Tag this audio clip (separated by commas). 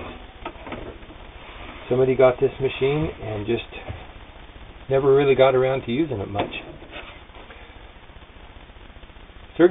Speech